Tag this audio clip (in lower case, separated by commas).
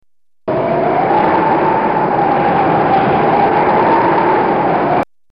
wind